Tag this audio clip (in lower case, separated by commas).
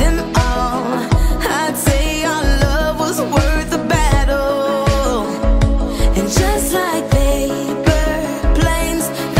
house music, music